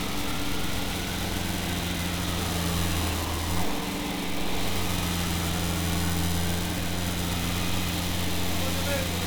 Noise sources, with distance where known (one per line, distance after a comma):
unidentified alert signal